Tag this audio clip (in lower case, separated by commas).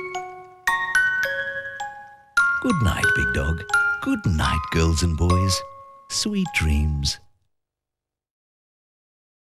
music, speech